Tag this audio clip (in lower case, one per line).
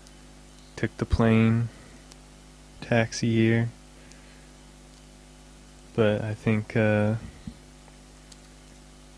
speech